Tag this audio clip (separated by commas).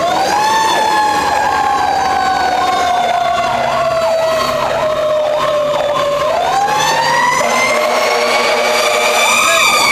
Vehicle, Speech, Motor vehicle (road)